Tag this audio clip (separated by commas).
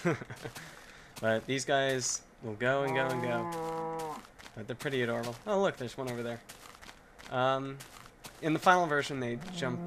Speech